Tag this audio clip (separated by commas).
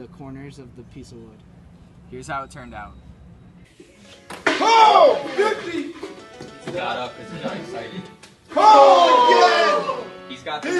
Music, Speech